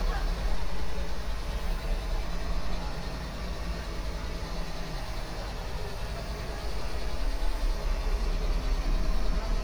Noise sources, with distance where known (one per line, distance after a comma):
engine of unclear size